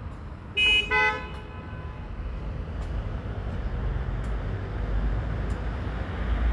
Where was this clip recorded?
on a street